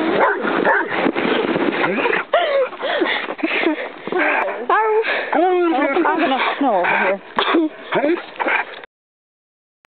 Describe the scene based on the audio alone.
Dogs bark followed by people talking to each other